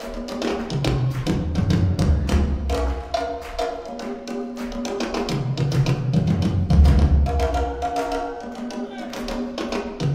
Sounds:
Music

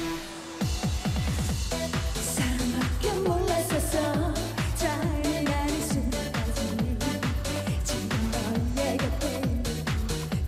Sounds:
Exciting music, Music

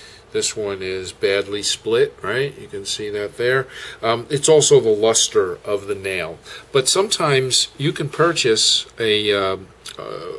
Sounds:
Speech

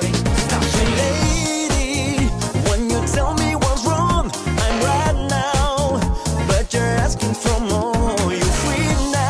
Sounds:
Music, Pop music

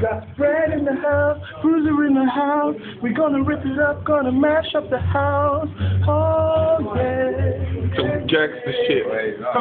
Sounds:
Speech

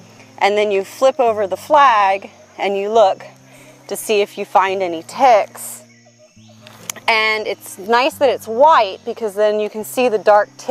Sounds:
Speech

